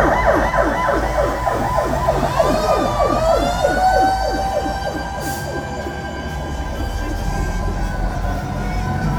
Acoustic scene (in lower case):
street